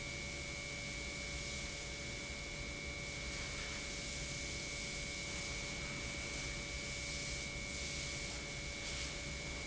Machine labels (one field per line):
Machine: pump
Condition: normal